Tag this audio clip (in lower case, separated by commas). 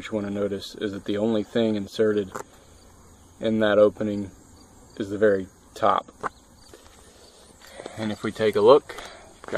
speech